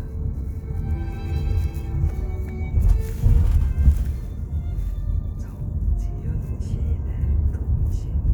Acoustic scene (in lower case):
car